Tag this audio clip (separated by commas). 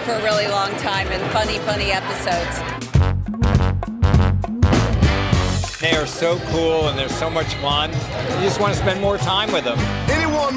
Speech, Music